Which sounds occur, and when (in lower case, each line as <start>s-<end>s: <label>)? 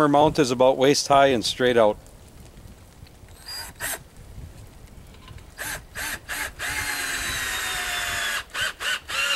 0.0s-1.9s: man speaking
0.0s-9.3s: wind
0.2s-0.3s: wind noise (microphone)
2.0s-2.0s: generic impact sounds
2.3s-2.4s: generic impact sounds
2.8s-2.9s: generic impact sounds
3.0s-3.1s: generic impact sounds
3.4s-4.0s: power tool
3.4s-3.6s: bleep
4.3s-4.8s: wind noise (microphone)
4.5s-4.9s: generic impact sounds
5.1s-5.4s: generic impact sounds
5.2s-5.4s: wind noise (microphone)
5.5s-5.8s: power tool
5.9s-6.2s: power tool
6.2s-6.5s: power tool
6.6s-8.4s: power tool
7.1s-7.5s: wind noise (microphone)
8.5s-8.7s: power tool
8.8s-8.9s: power tool
9.1s-9.3s: power tool